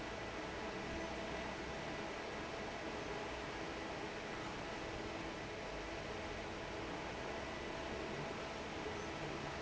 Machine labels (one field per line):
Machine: fan